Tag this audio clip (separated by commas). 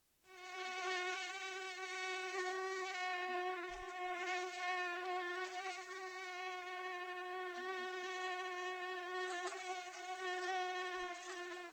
Wild animals, Animal, Insect